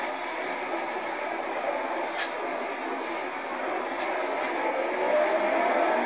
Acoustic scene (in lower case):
bus